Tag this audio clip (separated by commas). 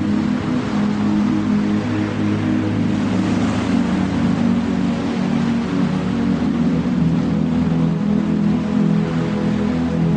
White noise, Music